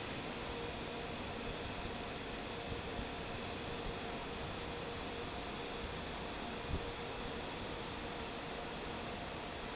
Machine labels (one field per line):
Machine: fan